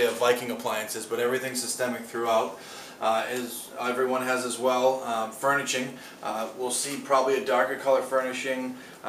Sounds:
Speech

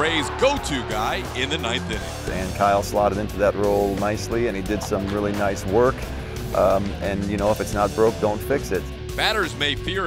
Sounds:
Speech, Music

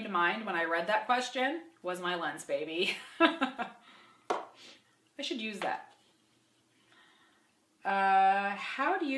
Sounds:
Speech, inside a small room

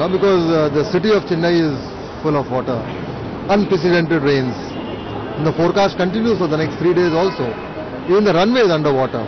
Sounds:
Speech

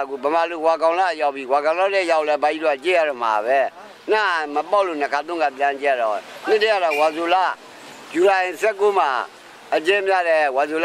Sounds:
Speech

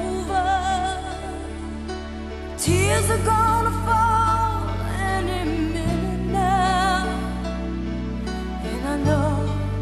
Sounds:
Music

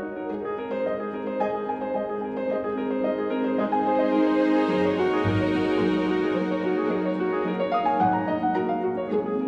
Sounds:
Music

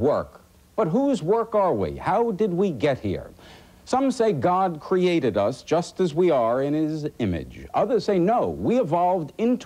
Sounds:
Speech

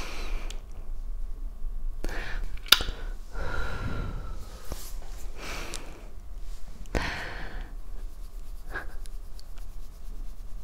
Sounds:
people slurping

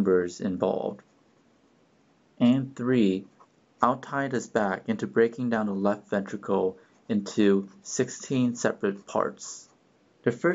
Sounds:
Speech

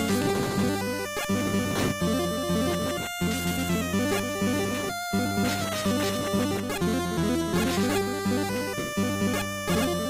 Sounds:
Music

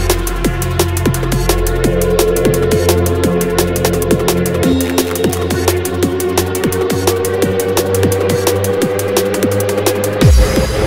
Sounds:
Music

